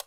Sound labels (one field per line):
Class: switch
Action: being turned on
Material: plastic